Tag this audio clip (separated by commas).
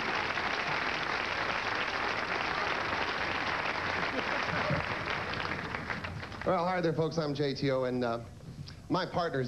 Speech